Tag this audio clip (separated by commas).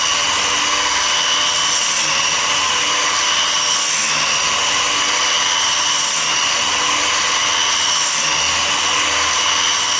Tools